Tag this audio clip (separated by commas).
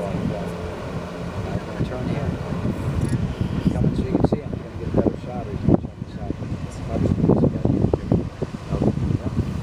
Water vehicle, Vehicle, Speech, speedboat